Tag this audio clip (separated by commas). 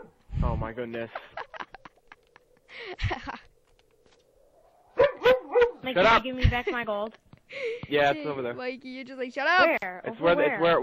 Bow-wow